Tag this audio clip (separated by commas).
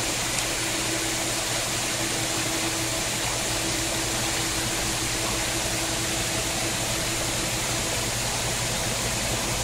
faucet, Water